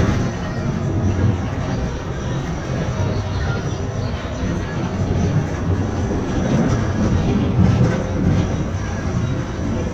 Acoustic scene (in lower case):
bus